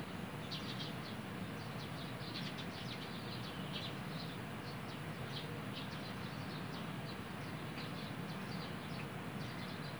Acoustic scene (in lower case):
park